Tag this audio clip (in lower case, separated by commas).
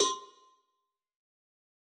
bell, cowbell